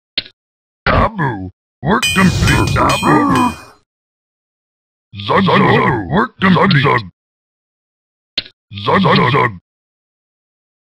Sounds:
Speech

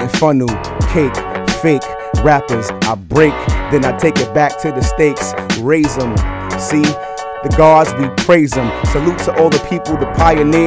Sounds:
Music

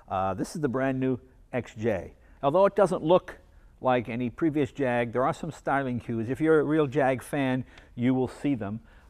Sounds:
Speech

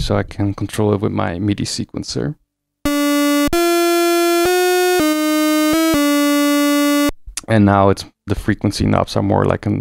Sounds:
playing synthesizer

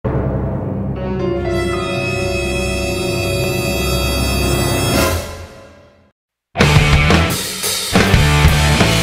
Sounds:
Scary music, Plucked string instrument, Acoustic guitar, Musical instrument, Guitar, Music

